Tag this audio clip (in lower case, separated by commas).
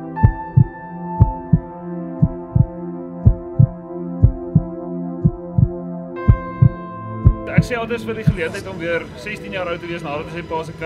music, speech